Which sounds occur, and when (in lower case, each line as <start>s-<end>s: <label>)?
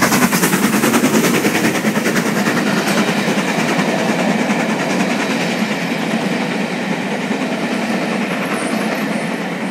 0.0s-9.7s: clickety-clack
0.0s-9.7s: steam
0.0s-9.7s: train